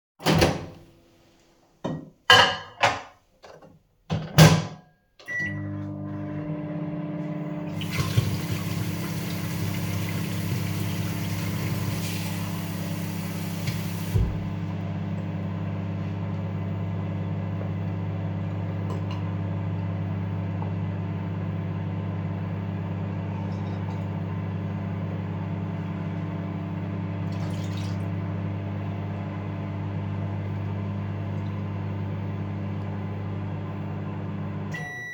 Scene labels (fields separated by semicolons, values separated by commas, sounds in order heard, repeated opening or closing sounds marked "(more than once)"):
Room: kitchen; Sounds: microwave, cutlery and dishes, running water